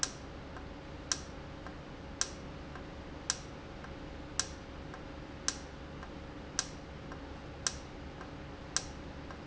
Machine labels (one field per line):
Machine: valve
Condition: normal